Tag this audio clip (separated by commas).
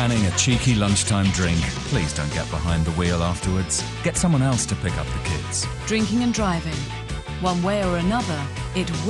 Speech, Radio, Music